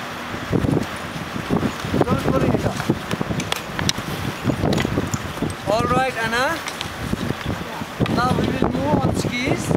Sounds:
outside, rural or natural, Speech

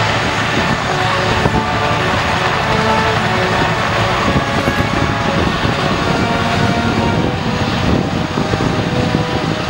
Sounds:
Music, Vehicle, Helicopter

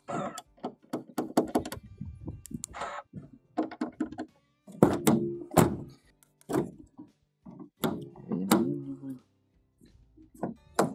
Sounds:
opening or closing car doors

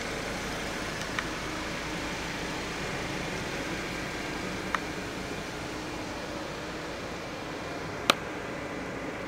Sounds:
Vehicle, Car, inside a large room or hall

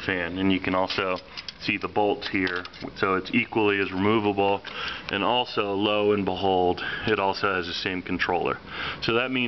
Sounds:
Speech

